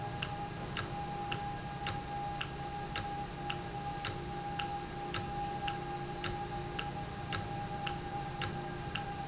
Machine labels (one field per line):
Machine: valve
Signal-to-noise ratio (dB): -6 dB